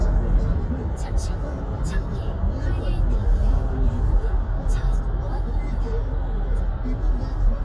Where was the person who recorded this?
in a car